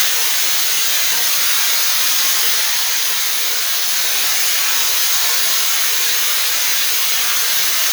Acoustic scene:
restroom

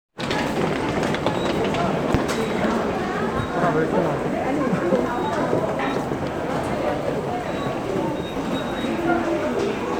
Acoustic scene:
subway station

